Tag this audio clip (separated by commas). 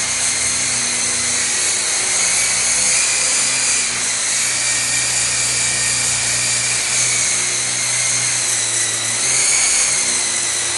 inside a small room, Helicopter